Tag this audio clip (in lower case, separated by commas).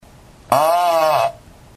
fart